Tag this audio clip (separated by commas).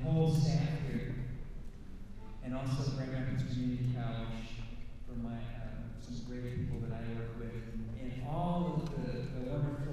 Speech